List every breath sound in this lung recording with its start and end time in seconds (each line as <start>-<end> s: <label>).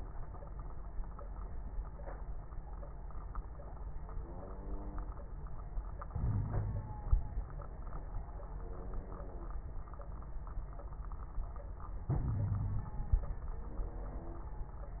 6.11-7.03 s: inhalation
6.21-6.91 s: wheeze
12.13-13.20 s: inhalation
12.22-12.89 s: wheeze